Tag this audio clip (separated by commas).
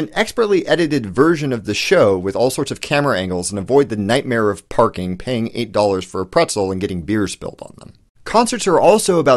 Speech